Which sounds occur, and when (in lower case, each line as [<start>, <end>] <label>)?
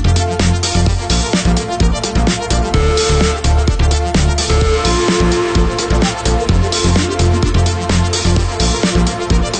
[0.00, 9.55] music